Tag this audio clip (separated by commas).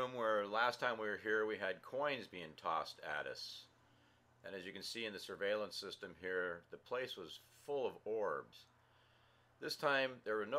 Speech